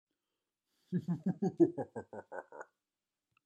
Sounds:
human voice
laughter

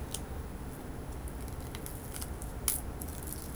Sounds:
crack

